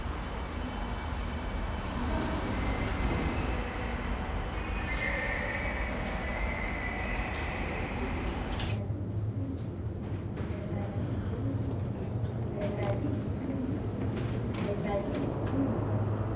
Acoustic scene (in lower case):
subway station